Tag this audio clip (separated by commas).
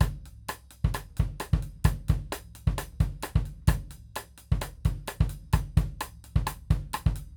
Drum kit, Music, Percussion, Musical instrument